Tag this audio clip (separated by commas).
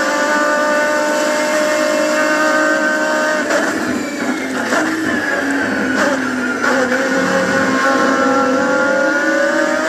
Car, Motor vehicle (road), Car passing by, Vehicle